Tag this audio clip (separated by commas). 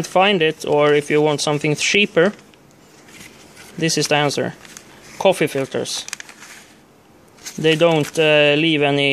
Speech, inside a small room